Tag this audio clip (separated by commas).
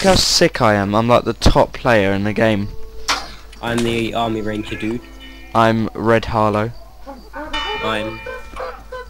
Speech, Music